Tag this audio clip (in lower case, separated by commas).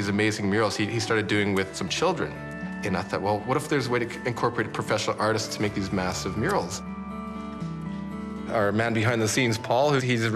speech, music